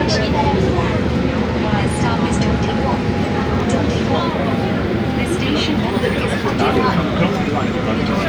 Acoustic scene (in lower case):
subway train